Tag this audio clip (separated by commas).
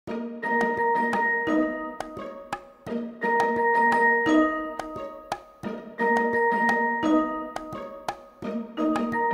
Glockenspiel, Music